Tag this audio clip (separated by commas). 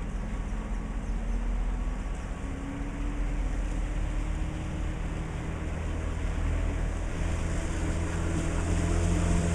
Vehicle, Motorboat, Water vehicle